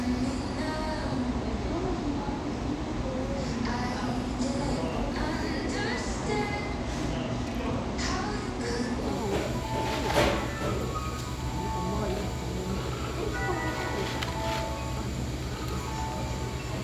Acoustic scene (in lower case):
cafe